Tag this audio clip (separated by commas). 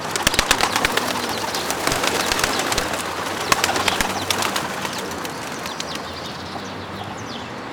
Bird, Wild animals, Animal